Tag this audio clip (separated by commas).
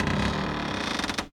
Cupboard open or close, Door, home sounds